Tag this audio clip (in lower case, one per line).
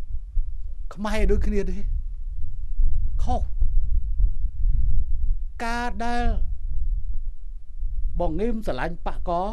man speaking
speech
monologue